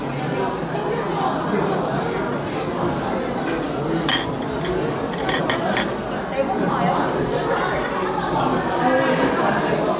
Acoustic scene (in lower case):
restaurant